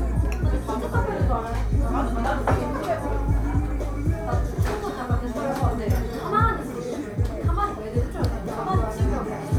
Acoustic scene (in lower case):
cafe